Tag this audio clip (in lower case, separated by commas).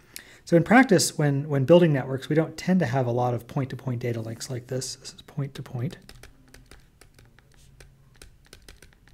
speech